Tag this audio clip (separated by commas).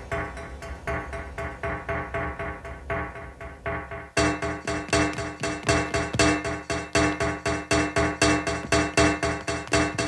Soundtrack music, Music